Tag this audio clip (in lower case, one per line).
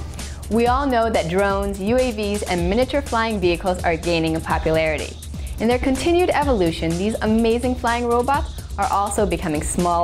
music
speech